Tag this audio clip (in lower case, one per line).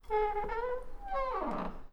squeak